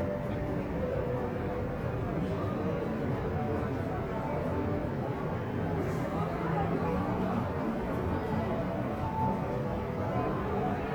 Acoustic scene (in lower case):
crowded indoor space